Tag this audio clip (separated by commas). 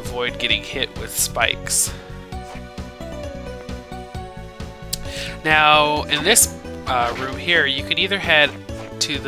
Speech, Music